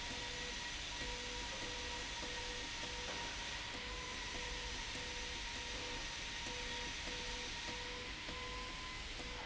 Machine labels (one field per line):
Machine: slide rail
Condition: abnormal